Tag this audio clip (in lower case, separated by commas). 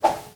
swish